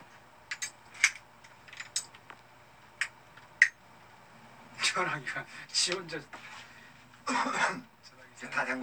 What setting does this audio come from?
elevator